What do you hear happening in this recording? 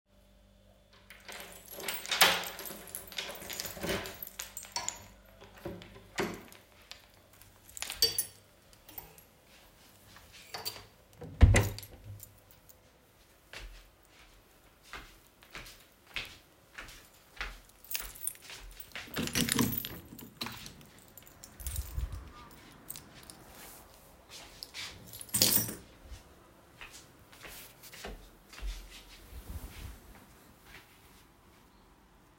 I opened my bedroom door with my key, then closed it. I walked to the window and opened it, with my keychain rattleing against the windows handle. Then I put down my keychain and walked to my bed where I sat down.